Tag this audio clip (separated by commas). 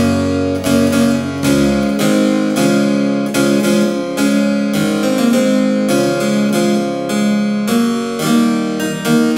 Music, Harpsichord, playing harpsichord